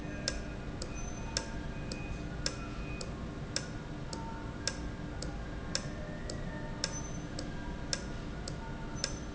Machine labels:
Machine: valve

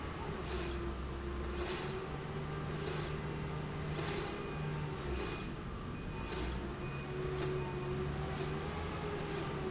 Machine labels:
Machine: slide rail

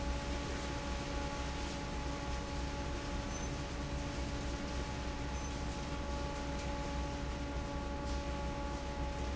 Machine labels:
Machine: fan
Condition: normal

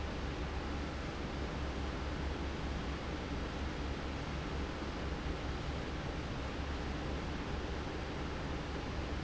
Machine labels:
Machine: fan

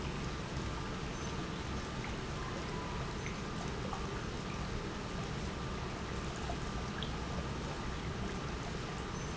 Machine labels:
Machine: pump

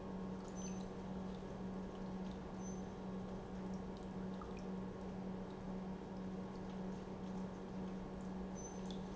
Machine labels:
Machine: pump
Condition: normal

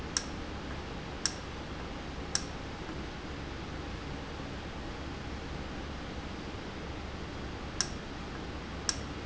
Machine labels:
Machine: valve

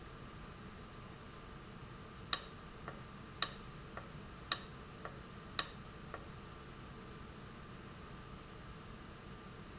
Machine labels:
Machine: valve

